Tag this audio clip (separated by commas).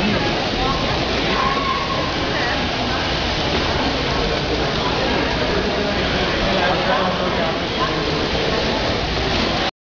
Speech